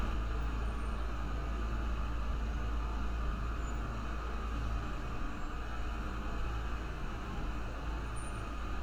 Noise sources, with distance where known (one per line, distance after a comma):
engine of unclear size